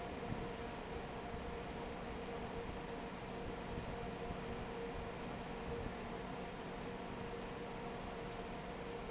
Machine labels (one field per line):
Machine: fan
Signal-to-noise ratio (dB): 6 dB